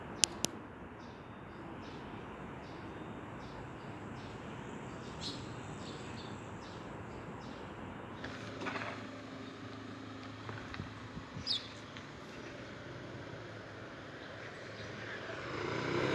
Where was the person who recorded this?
in a residential area